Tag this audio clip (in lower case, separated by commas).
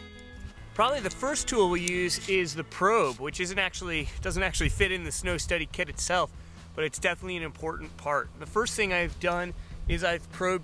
speech